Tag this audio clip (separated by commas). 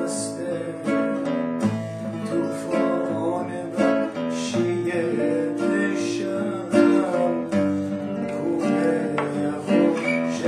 Music, Male singing